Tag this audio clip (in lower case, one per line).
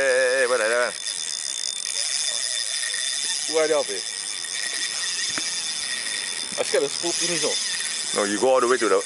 speech